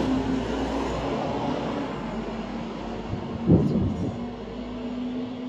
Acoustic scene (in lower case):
street